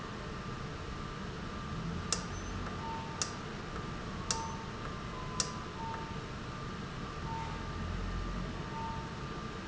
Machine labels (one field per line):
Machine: valve